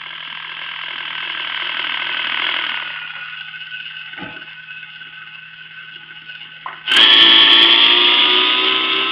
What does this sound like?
Helicopter blades spinning